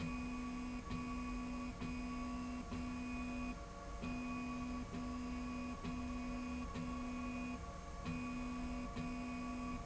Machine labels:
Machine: slide rail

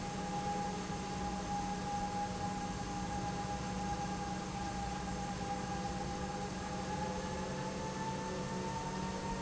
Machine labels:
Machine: pump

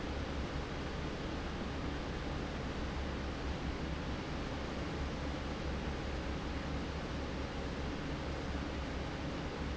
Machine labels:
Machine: fan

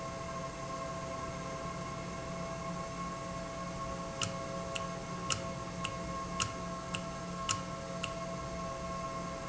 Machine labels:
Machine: valve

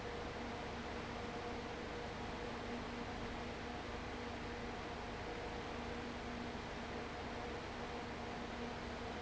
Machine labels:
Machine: fan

